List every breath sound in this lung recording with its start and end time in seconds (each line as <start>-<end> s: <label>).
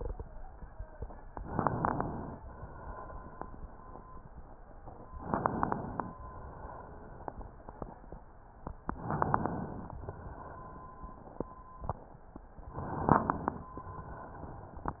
1.39-2.39 s: inhalation
1.39-2.39 s: crackles
2.37-4.51 s: exhalation
5.21-6.13 s: inhalation
5.21-6.13 s: crackles
6.16-8.19 s: exhalation
6.16-8.19 s: crackles
8.88-9.99 s: inhalation
8.88-9.99 s: crackles
10.02-11.71 s: exhalation
12.73-13.73 s: inhalation
12.73-13.73 s: crackles